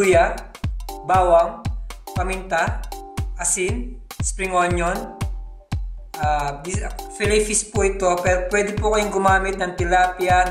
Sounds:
music, speech

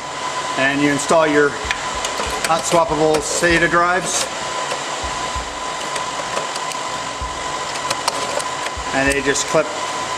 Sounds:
speech

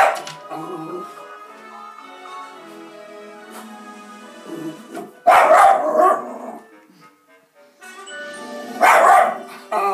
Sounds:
dog, music, animal

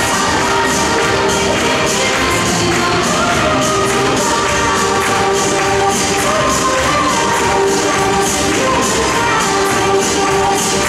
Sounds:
music

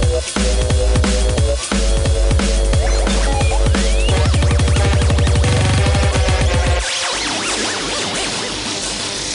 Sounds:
music, dubstep, electronic music, drum and bass

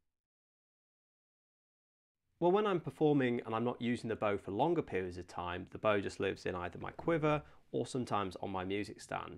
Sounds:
speech

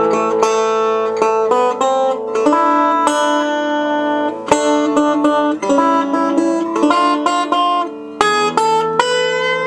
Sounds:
plucked string instrument, musical instrument, guitar, music

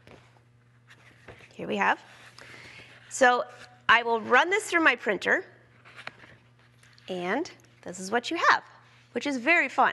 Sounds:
speech

